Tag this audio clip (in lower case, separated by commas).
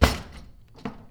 home sounds, drawer open or close, cutlery